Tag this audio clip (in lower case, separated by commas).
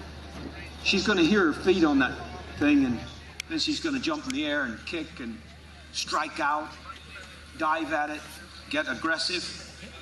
speech